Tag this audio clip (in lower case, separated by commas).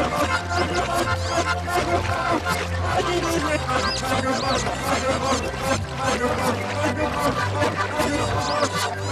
music